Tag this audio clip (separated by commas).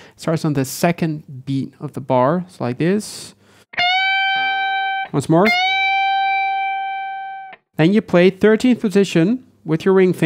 Plucked string instrument, Guitar, Musical instrument, Tapping (guitar technique), Music